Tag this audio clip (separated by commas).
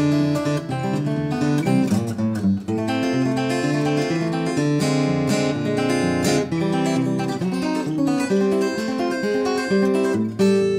Plucked string instrument, Guitar, Musical instrument, Strum, Acoustic guitar, Music